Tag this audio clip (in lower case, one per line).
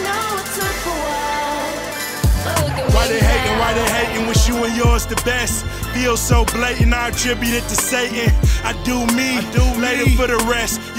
music